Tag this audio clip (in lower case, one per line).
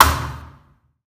thump